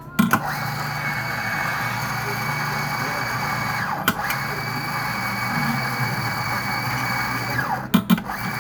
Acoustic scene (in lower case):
cafe